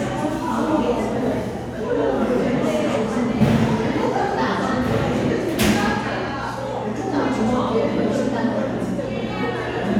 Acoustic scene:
crowded indoor space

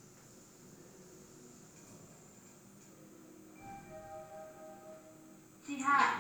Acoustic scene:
elevator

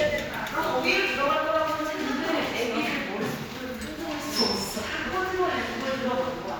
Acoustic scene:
elevator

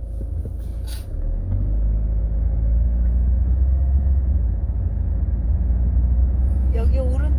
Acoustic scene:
car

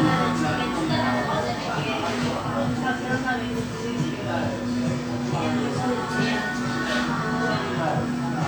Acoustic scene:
cafe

